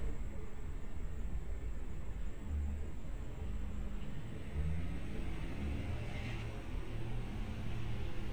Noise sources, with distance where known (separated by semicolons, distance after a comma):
engine of unclear size